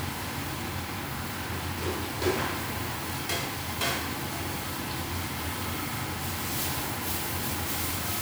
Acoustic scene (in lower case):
restaurant